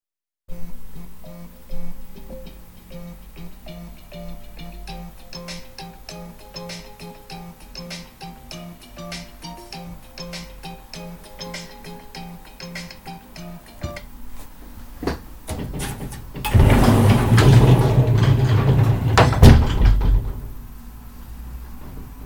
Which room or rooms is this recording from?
bedroom